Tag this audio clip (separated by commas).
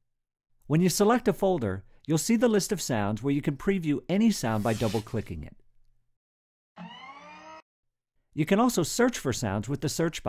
Speech